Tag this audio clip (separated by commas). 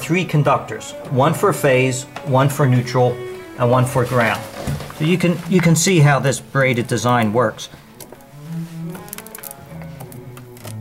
Speech, Music